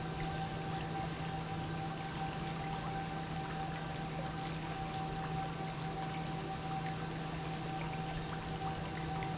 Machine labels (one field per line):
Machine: pump